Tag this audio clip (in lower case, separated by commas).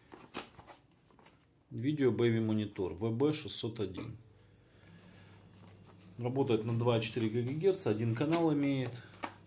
speech